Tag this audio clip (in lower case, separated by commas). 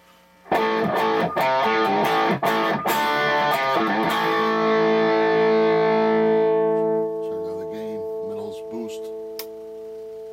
distortion, effects unit, music, speech, guitar